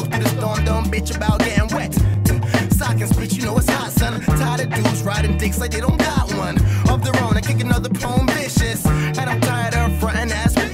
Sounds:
Music

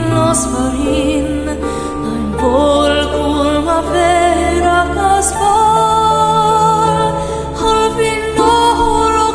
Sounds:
Music

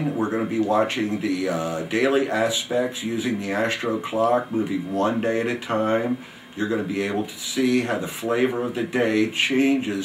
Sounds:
Speech

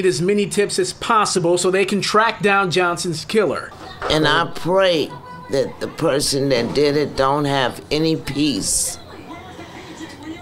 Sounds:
Speech

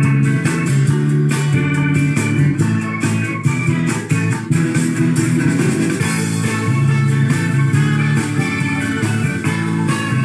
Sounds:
Music

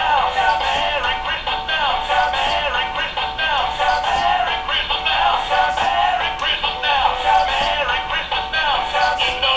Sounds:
Male singing, Music

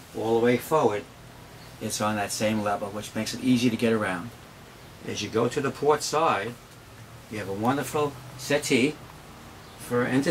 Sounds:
Speech

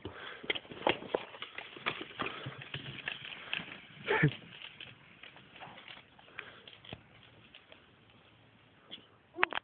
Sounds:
Bicycle

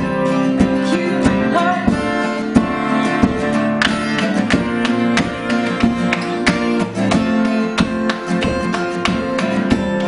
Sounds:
Country, Singing, Music, Flamenco

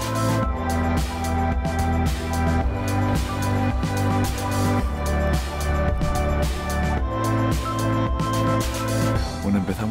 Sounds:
Music, Speech

